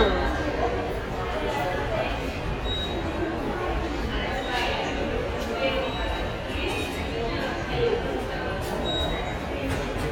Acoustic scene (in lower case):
subway station